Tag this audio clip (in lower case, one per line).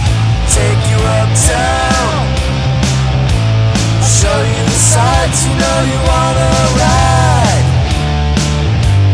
music